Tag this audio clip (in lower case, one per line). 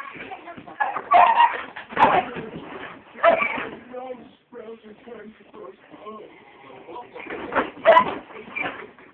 dog
pets
yip
animal
speech